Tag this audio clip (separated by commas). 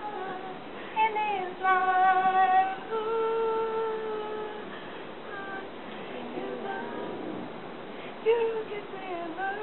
Female singing